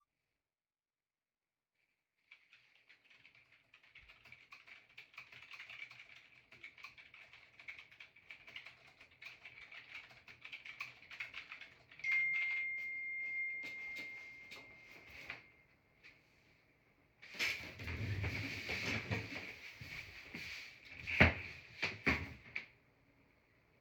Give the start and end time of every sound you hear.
1.9s-13.0s: keyboard typing
11.9s-16.2s: phone ringing
20.9s-22.8s: wardrobe or drawer

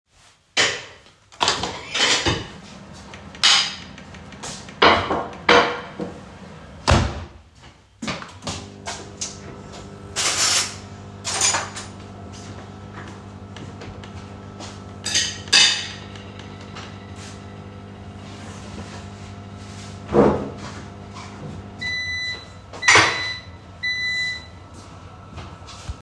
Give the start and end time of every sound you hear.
0.6s-1.2s: cutlery and dishes
1.9s-2.4s: cutlery and dishes
3.4s-3.9s: cutlery and dishes
4.8s-5.9s: cutlery and dishes
8.6s-22.2s: microwave
10.1s-10.9s: cutlery and dishes
11.2s-12.0s: cutlery and dishes
15.0s-16.1s: cutlery and dishes
22.6s-23.5s: cutlery and dishes

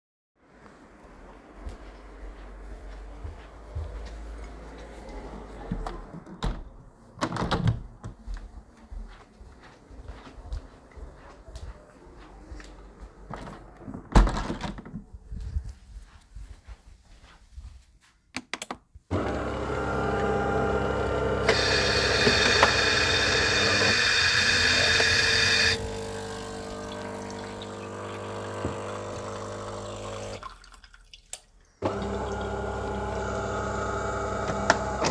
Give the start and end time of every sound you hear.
1.5s-5.4s: footsteps
5.6s-8.5s: window
8.8s-13.4s: footsteps
13.3s-15.4s: window
15.2s-18.3s: footsteps
18.3s-35.1s: coffee machine
21.6s-25.9s: running water

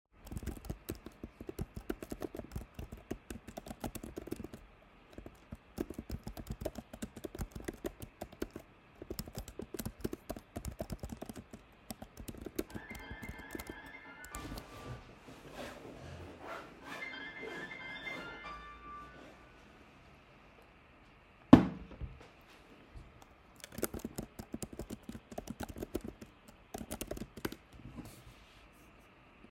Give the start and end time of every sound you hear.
0.2s-15.3s: keyboard typing
12.8s-20.3s: phone ringing
23.5s-28.2s: keyboard typing

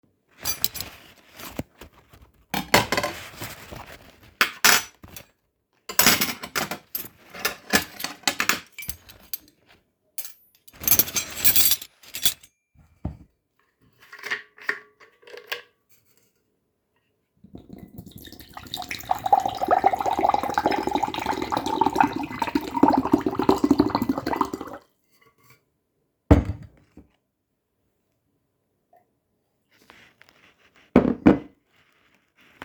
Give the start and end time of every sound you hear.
0.4s-1.0s: cutlery and dishes
2.4s-5.3s: cutlery and dishes
5.7s-12.6s: cutlery and dishes
17.5s-25.0s: running water
26.3s-26.7s: cutlery and dishes
30.8s-31.5s: cutlery and dishes

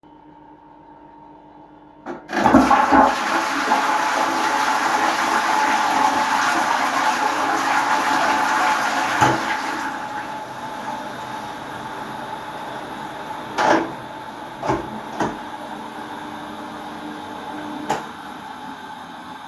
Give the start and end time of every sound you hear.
2.0s-11.9s: toilet flushing
13.6s-15.4s: door
17.8s-18.1s: light switch

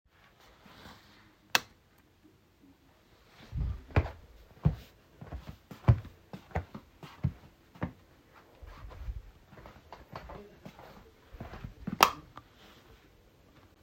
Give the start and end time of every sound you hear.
1.4s-1.8s: light switch
3.3s-12.0s: footsteps
11.7s-12.5s: light switch

